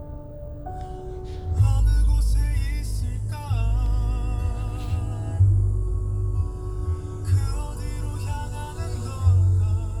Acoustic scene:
car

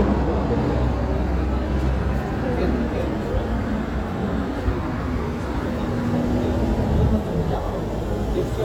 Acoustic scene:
street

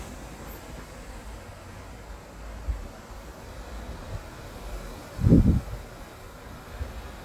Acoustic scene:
street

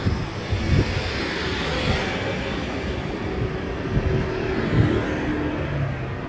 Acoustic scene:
street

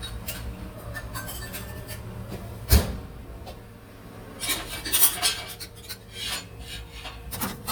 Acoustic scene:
kitchen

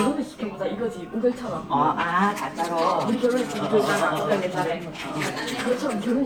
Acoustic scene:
crowded indoor space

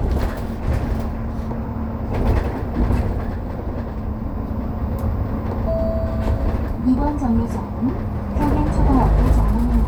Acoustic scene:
bus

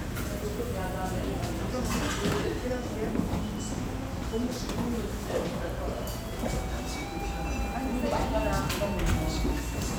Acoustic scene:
restaurant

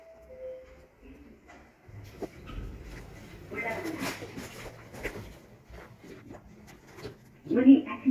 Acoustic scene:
elevator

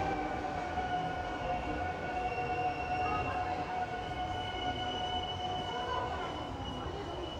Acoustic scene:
subway station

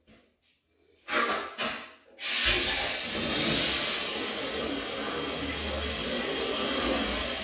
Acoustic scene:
restroom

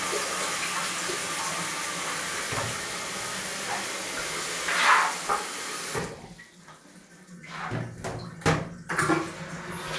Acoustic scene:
restroom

